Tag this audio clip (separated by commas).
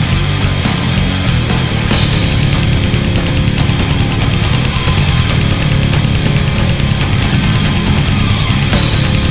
Music